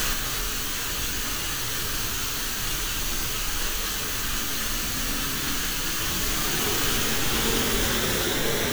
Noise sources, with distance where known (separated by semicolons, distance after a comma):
engine of unclear size